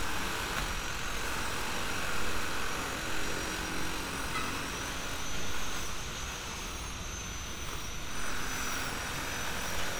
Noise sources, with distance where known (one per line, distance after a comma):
unidentified impact machinery